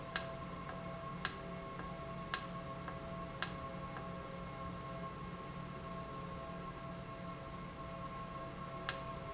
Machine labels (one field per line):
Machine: valve